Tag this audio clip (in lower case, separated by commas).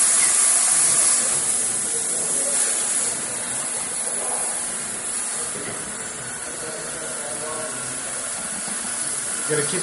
inside a large room or hall, speech, steam